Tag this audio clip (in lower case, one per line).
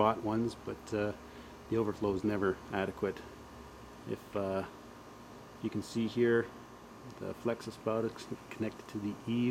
speech